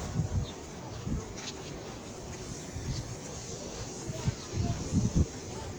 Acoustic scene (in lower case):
park